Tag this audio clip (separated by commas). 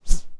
Whoosh